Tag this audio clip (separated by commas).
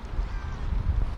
Wind